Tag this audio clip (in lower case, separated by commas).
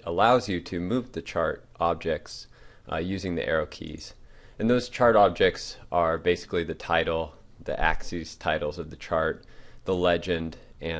speech